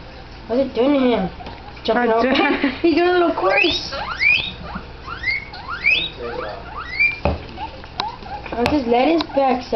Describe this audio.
People are talking, an animal is squealing